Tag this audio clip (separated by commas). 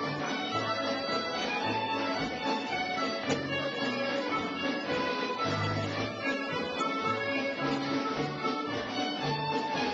Violin, Musical instrument, Music